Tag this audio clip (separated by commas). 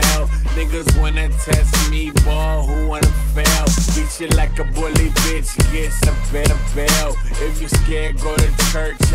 Music